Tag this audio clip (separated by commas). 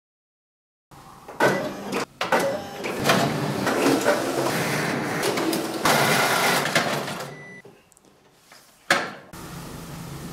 printer printing, Printer